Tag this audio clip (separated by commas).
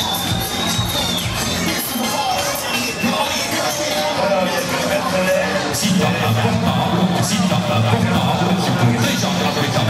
Speech, Music